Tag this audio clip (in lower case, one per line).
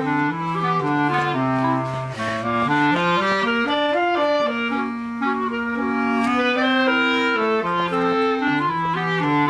musical instrument
music
playing clarinet
clarinet
woodwind instrument